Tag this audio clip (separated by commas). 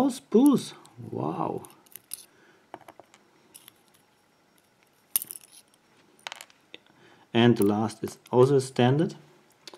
Speech